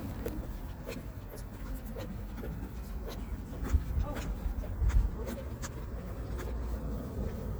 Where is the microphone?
in a park